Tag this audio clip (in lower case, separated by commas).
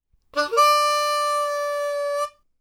music, harmonica, musical instrument